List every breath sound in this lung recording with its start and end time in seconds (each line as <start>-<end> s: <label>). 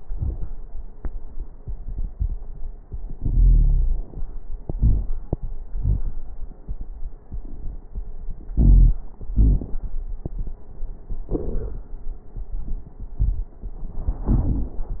3.13-4.06 s: inhalation
3.13-4.06 s: wheeze
4.71-5.31 s: exhalation
4.71-5.31 s: wheeze
8.53-8.97 s: inhalation
8.53-8.97 s: wheeze
9.37-9.81 s: exhalation
9.37-9.81 s: wheeze